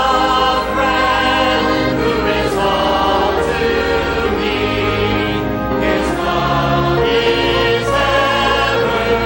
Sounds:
male singing
choir
female singing
music

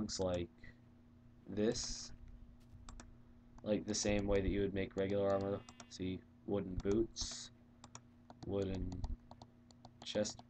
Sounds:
speech

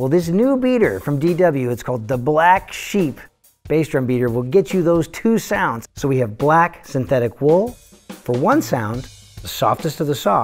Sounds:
music
speech

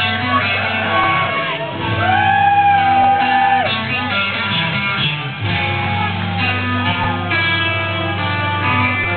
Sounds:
music

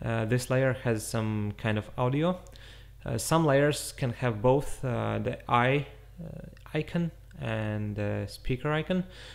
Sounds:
speech

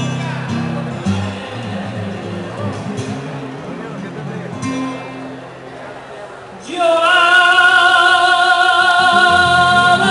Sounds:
speech
music

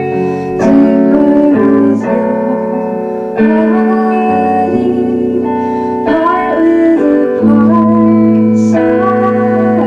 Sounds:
music

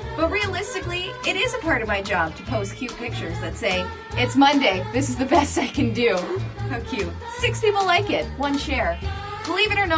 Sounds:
music
speech

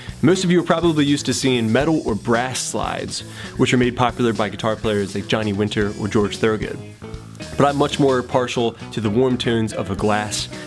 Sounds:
music
speech

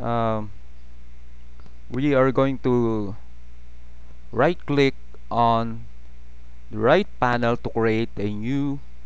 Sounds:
speech

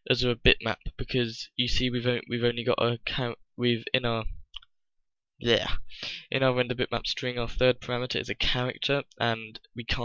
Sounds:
speech

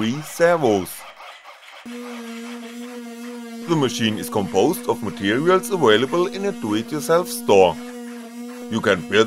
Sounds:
speech

